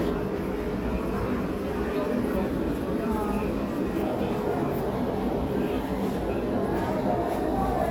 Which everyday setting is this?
crowded indoor space